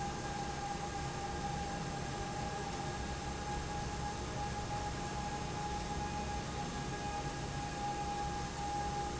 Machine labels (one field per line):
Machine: fan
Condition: normal